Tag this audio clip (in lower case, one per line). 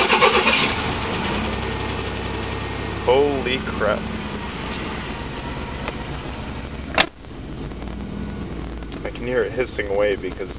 speech
car
vehicle